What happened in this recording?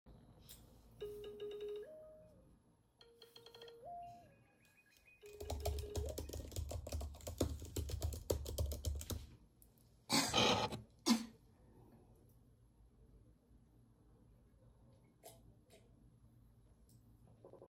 the phone rings, while i am typing on the keyboard and i cough and i drink some water